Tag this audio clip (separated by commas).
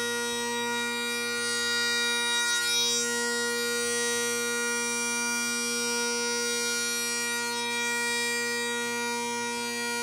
Music